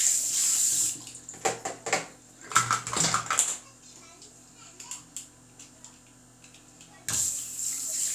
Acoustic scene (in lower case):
restroom